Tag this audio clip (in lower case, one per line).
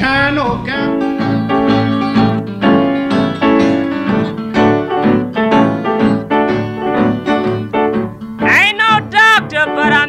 music